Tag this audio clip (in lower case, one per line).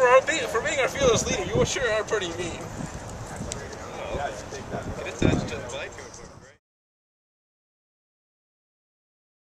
speech